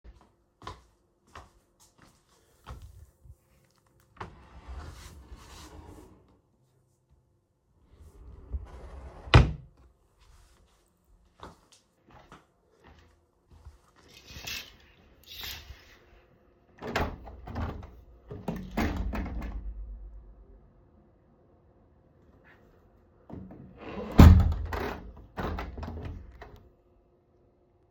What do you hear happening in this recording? I walked across the bedroom with audible footsteps toward the wardrobe. I opened a drawer searched through it and closed it again. I then walked to the window and opened it before closing it again.